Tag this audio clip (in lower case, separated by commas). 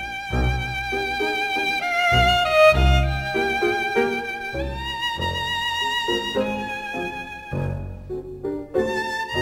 sad music, music